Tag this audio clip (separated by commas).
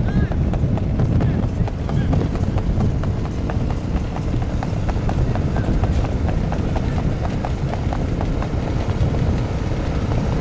Animal